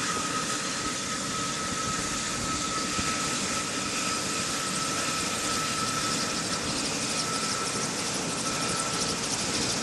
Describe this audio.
Helicopter blades whir at a moderate speed